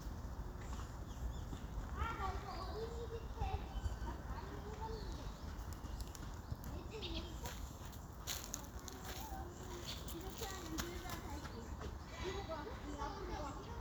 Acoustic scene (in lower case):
park